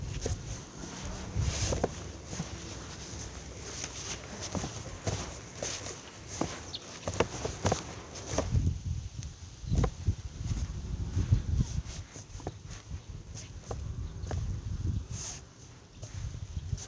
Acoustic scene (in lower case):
residential area